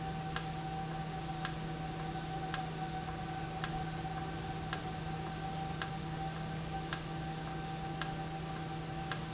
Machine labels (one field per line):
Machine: valve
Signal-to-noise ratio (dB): -6 dB